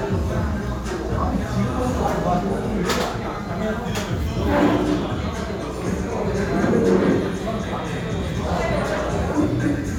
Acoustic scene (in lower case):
crowded indoor space